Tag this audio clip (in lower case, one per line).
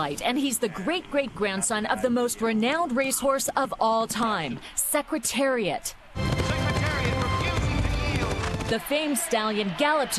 speech
music